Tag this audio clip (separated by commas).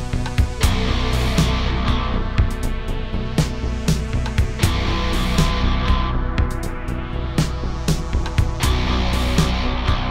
Music, Soundtrack music